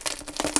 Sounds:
crushing

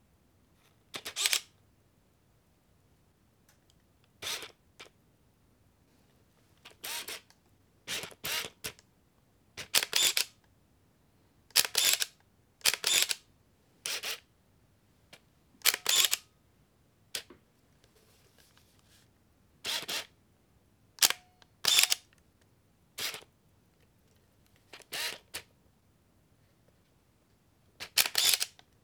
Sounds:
camera, mechanisms

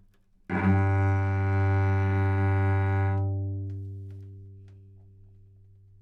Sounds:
music, bowed string instrument, musical instrument

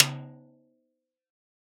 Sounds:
drum, snare drum, musical instrument, music, percussion

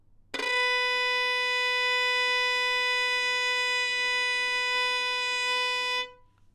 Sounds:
musical instrument, music, bowed string instrument

